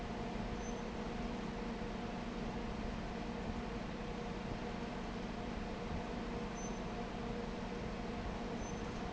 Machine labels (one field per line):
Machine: fan